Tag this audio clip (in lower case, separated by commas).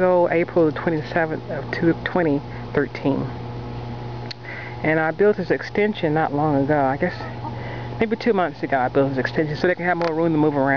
speech, rooster